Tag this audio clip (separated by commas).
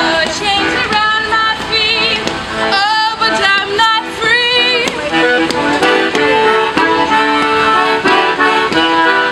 Accordion